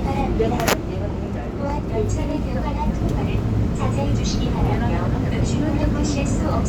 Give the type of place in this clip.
subway train